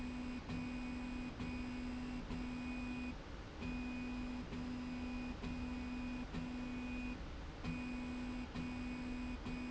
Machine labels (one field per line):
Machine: slide rail